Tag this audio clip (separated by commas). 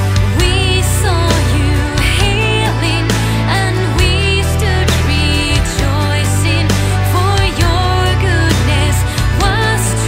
Music